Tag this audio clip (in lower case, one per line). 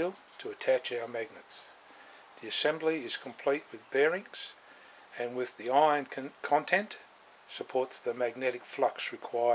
speech